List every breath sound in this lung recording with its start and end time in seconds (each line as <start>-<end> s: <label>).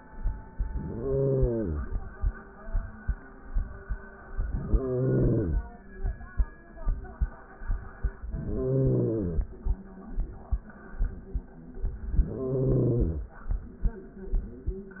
0.66-2.04 s: inhalation
4.34-5.72 s: inhalation
8.20-9.59 s: inhalation
12.03-13.42 s: inhalation